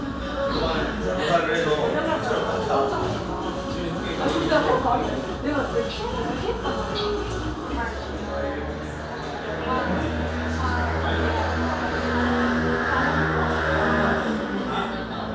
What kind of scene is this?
cafe